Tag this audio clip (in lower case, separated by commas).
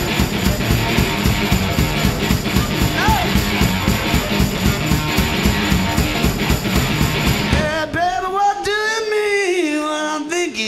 music